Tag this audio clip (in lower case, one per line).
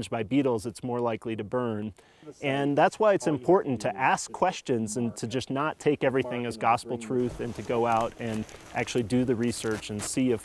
speech